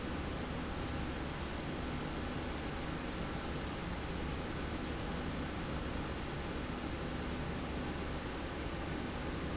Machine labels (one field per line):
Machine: slide rail